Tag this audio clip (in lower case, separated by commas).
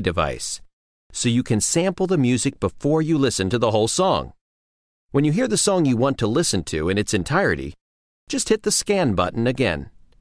speech